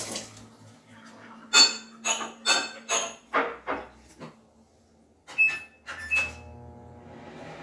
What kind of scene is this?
kitchen